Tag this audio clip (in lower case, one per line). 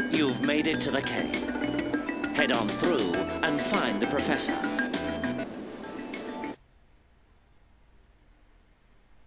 music
speech